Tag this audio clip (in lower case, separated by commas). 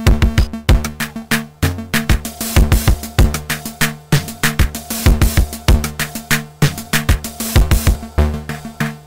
electronica, musical instrument, synthesizer, music, drum machine